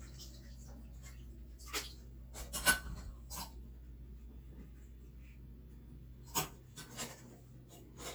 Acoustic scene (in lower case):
kitchen